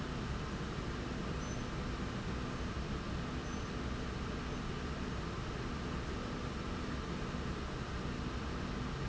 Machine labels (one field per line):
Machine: slide rail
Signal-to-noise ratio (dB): -6 dB